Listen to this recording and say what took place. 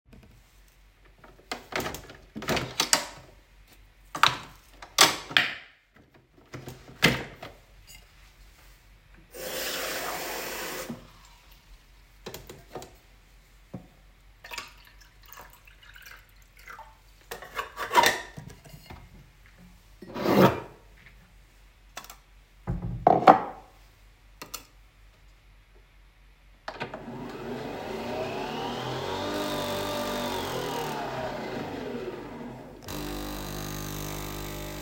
I opened the top of the coffee machine and inserted a coffee capsule, filled the water tank and put th emug under the coffee machine and pressed the button